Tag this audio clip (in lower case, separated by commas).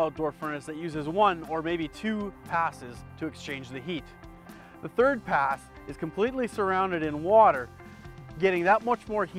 music, speech